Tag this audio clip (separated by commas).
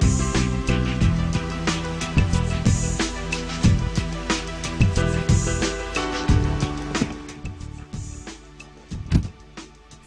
Background music, Music